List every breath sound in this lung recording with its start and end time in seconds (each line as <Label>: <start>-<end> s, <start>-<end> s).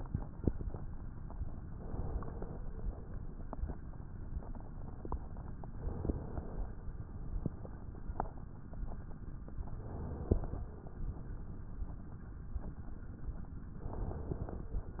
Inhalation: 1.73-2.71 s, 5.67-6.66 s, 9.75-10.74 s, 13.76-14.74 s